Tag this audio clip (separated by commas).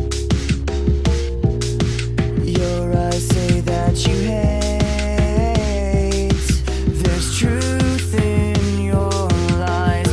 Electric guitar, Music, Strum, Guitar, Musical instrument, Plucked string instrument